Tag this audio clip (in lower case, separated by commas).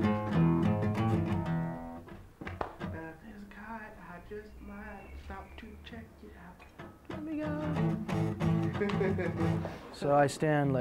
speech, music